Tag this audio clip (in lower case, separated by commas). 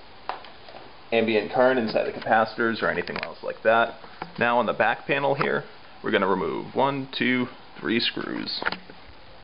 inside a large room or hall, speech